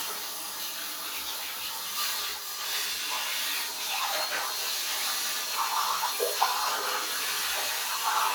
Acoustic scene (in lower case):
restroom